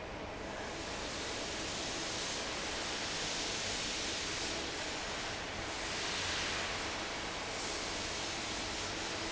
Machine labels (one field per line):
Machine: fan